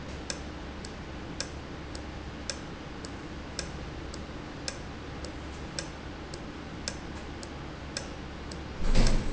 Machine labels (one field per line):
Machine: valve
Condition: normal